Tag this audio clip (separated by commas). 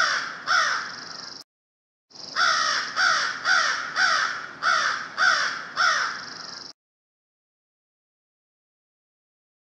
crow cawing